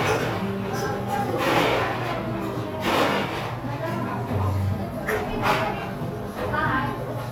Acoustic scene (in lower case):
cafe